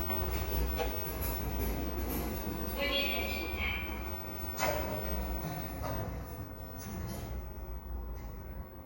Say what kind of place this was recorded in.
elevator